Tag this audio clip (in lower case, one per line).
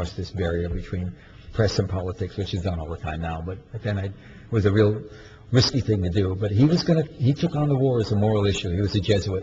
male speech
speech
narration